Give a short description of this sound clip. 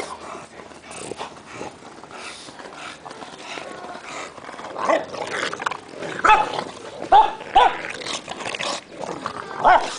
Dogs are panting, barking and growling